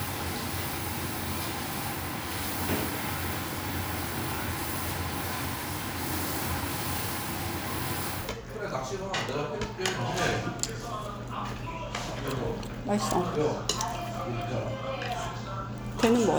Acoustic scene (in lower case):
restaurant